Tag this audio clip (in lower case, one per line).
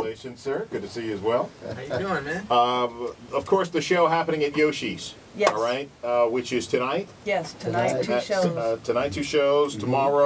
speech